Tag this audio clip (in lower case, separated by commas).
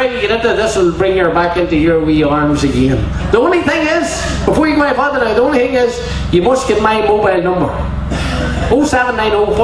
speech